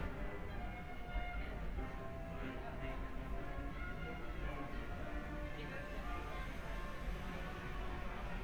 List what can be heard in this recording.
music from a fixed source, person or small group talking